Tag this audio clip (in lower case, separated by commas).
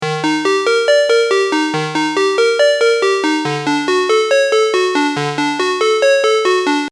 alarm, telephone, ringtone